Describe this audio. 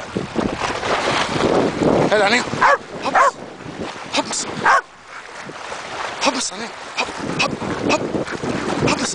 Splashing water and wind blowing, a man speaks and a dog barks